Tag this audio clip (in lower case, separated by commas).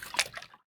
liquid, splatter